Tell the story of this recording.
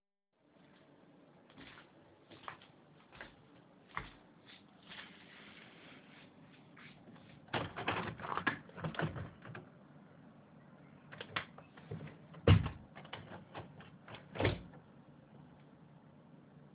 I walk to the window in the living room and open it, then close it again.